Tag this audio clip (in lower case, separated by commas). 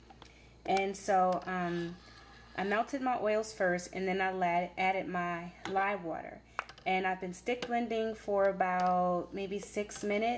speech